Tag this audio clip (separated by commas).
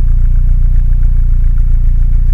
Motor vehicle (road), Vehicle, Car, Idling, Engine